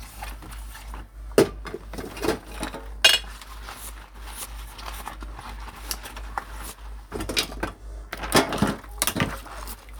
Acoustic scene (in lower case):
kitchen